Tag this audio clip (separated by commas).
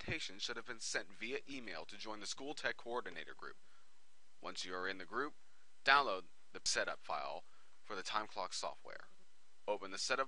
Speech